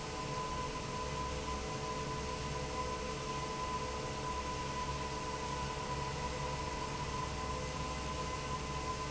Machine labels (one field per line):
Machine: fan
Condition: normal